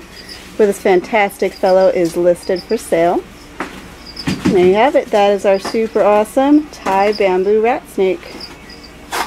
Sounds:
Speech, Animal

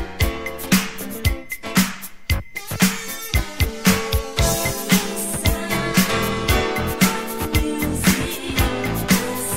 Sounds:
Music

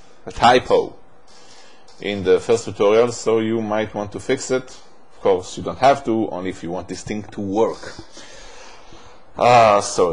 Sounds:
Speech

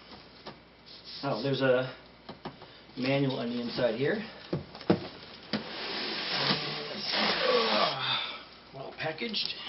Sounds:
Speech, inside a small room

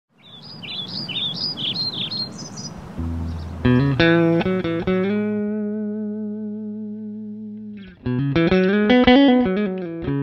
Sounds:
Bird, tweet, bird song

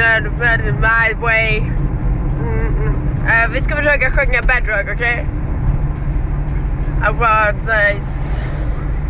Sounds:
Speech, Vehicle

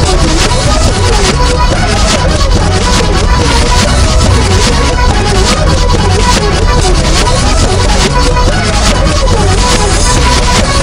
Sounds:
Music

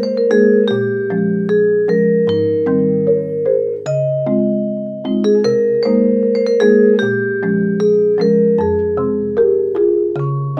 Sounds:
playing marimba, Marimba, Glockenspiel, Mallet percussion

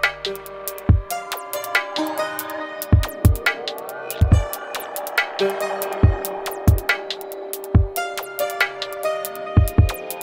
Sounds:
Music, Electronica

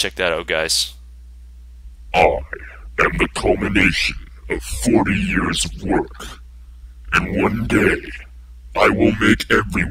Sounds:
Speech, Sound effect

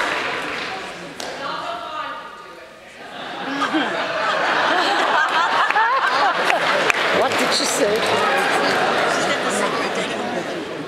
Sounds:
chortle, Speech

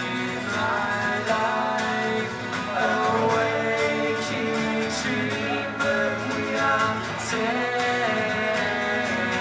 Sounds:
Music

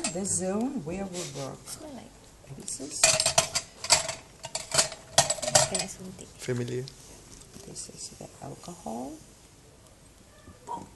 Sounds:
Speech

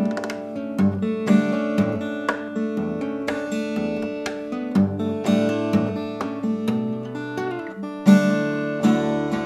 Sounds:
Plucked string instrument, Strum, Musical instrument, Music, Guitar

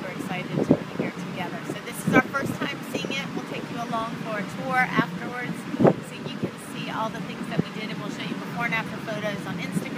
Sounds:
Speech

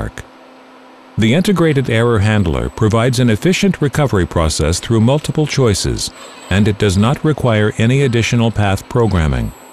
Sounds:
arc welding

